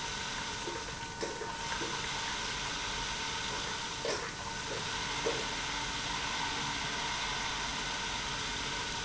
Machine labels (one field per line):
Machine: pump